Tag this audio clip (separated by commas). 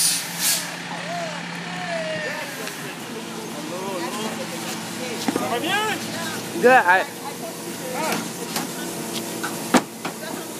Truck, Speech, Vehicle